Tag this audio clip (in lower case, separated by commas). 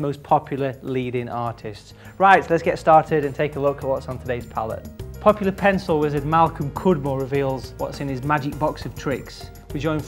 speech, music